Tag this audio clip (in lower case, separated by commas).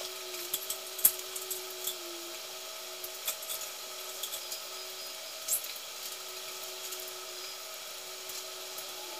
insect, power tool, animal, tools